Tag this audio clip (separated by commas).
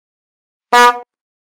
Alarm, Vehicle, honking, Motor vehicle (road), Car